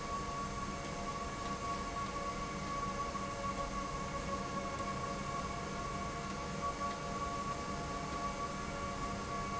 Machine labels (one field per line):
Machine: slide rail